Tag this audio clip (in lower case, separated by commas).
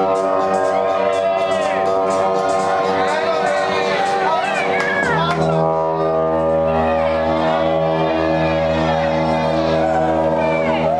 music